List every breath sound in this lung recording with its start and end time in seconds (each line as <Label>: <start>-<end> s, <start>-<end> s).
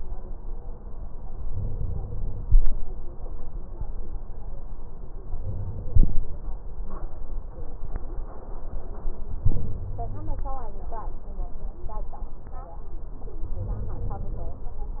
Inhalation: 1.48-2.46 s, 5.31-6.29 s, 9.44-10.41 s, 13.58-14.56 s